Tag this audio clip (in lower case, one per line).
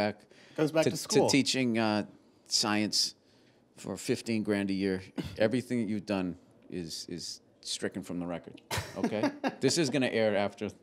speech